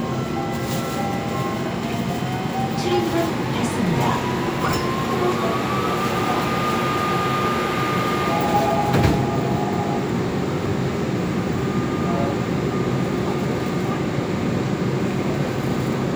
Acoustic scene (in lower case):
subway train